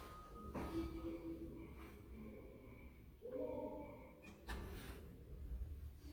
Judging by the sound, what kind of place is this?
elevator